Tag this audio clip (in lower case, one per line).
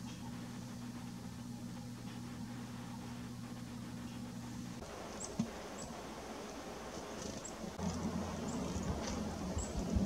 black capped chickadee calling